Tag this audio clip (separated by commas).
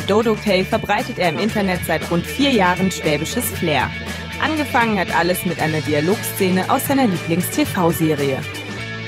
Speech, Music